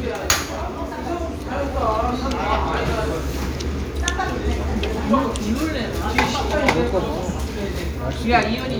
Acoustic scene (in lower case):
restaurant